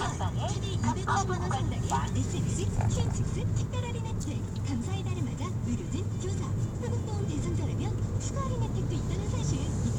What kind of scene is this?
car